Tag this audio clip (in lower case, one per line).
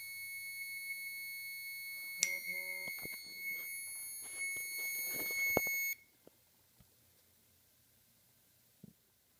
smoke detector beeping